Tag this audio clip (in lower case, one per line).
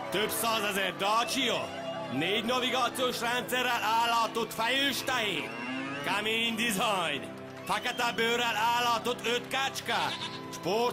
speech
music